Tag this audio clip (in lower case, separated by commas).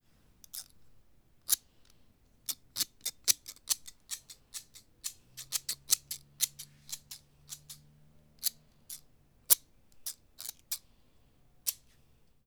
scissors, home sounds